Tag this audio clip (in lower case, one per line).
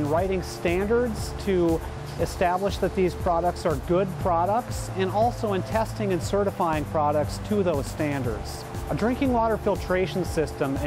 speech
music